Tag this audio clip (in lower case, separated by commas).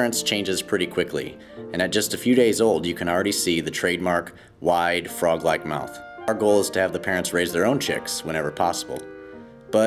speech, music